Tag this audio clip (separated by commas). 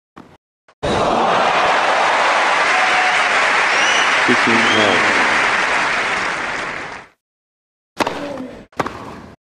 Speech